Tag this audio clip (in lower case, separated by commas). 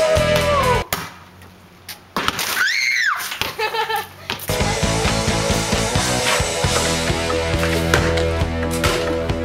basketball bounce, progressive rock, music, rock music